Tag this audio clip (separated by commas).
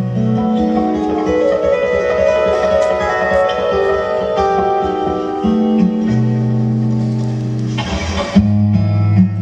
Musical instrument, Plucked string instrument, Music, Electric guitar, Guitar